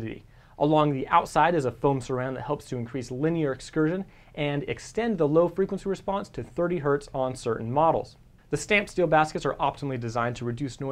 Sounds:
speech

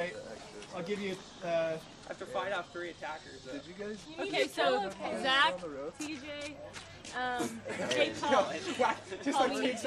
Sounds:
speech

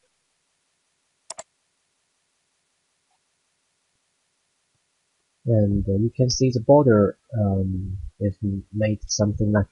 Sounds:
speech

